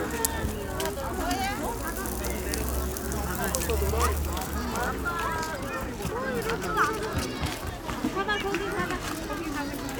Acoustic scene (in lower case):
park